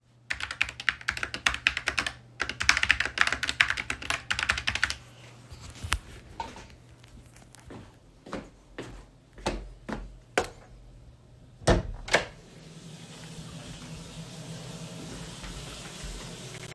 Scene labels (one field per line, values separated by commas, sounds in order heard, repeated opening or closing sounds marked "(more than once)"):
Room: bedroom, kitchen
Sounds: keyboard typing, footsteps, light switch, door, running water